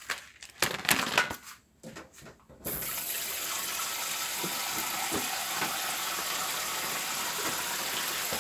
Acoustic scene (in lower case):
kitchen